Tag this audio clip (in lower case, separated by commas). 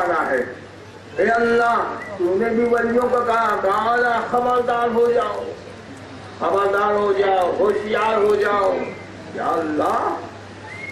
man speaking, speech